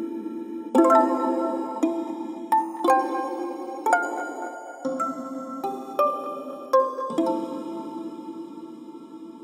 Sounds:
Music

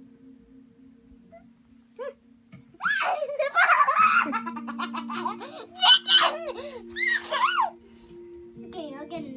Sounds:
Speech

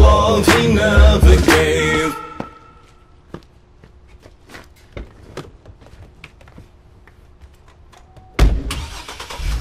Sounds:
Music, Sound effect

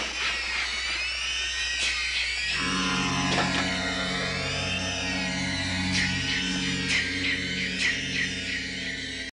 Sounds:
Music

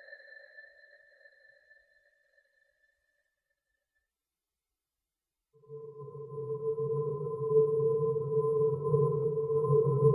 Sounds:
Electronic music, Ambient music

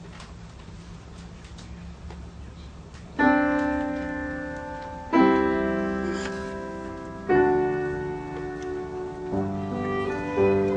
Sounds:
Bowed string instrument, fiddle, Music, Orchestra, Piano, Cello, Musical instrument

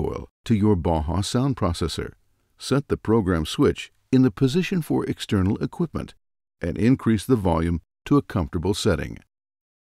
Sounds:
Speech

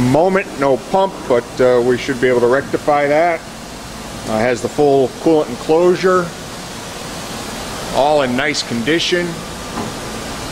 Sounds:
Speech

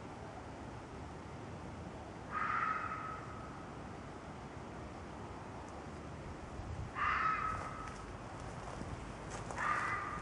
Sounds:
Rustle

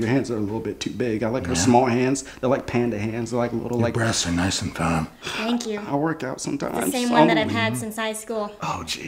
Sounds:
Speech

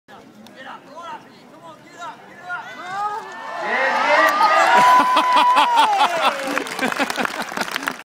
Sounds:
Speech

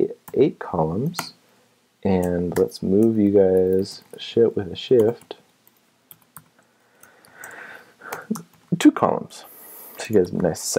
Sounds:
Typing, Speech

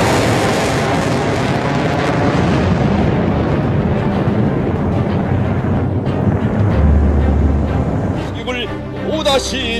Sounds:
missile launch

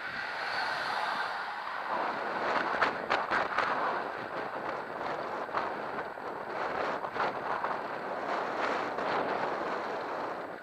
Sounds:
Vehicle

